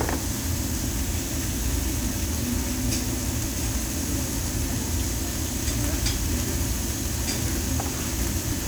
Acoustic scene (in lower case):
restaurant